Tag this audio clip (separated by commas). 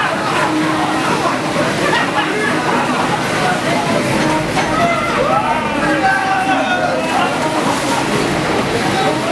Speech, Stream